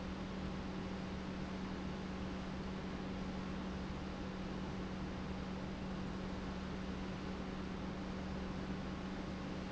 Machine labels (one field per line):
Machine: pump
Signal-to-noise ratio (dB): 0 dB